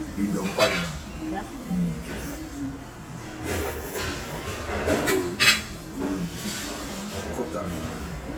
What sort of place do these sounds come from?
restaurant